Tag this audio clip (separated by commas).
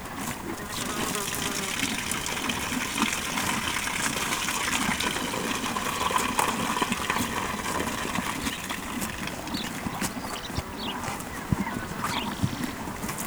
livestock, Animal